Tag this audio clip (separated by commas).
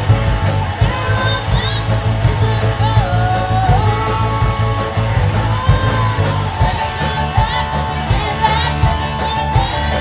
Rock and roll, Music